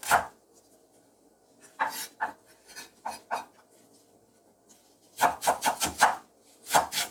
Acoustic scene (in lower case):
kitchen